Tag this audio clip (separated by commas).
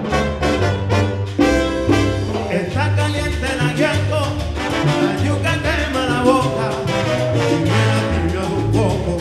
Independent music, Music